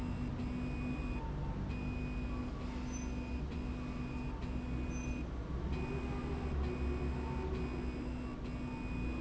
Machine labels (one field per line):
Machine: slide rail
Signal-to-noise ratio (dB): -6 dB